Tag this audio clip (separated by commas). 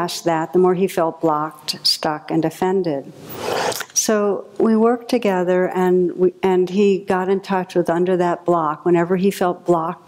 Speech